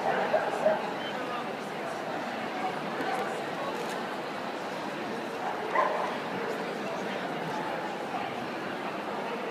Crowd chattering then a dog yelps